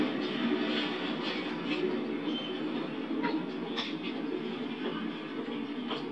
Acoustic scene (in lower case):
park